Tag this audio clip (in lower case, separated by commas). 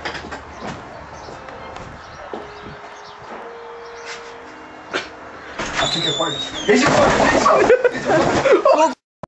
speech